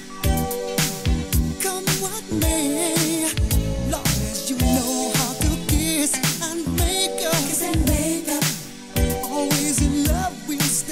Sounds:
funk
disco
music

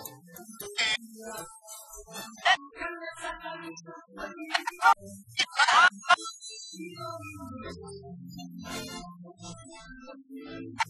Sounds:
speech

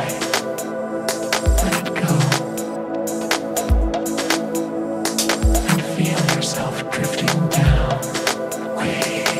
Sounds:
music

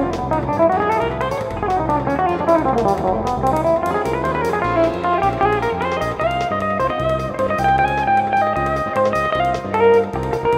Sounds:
music
guitar
musical instrument
plucked string instrument
strum

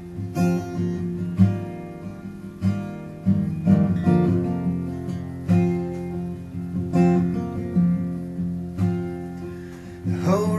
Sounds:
music

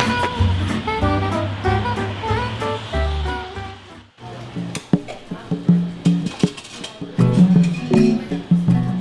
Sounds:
inside a small room
music

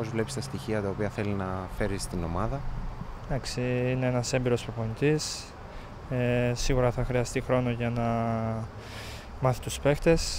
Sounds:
speech

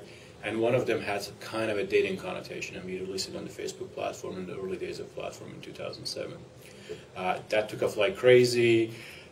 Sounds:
speech

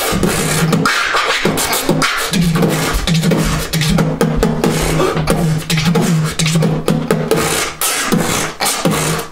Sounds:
vocal music
beatboxing

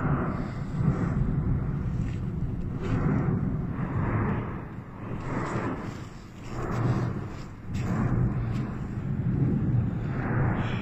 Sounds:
volcano explosion

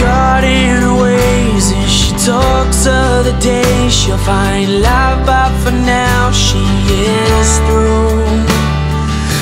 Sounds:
music

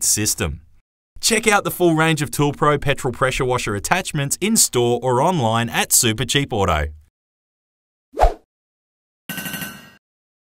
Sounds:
speech

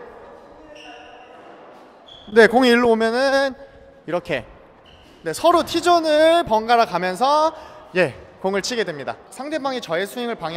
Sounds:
playing squash

